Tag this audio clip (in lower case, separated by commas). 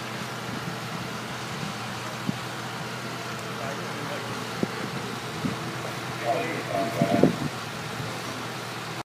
vehicle, speech